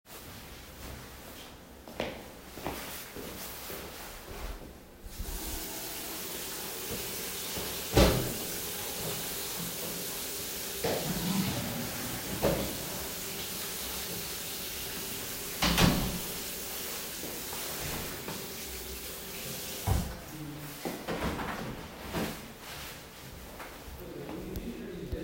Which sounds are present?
footsteps, running water, door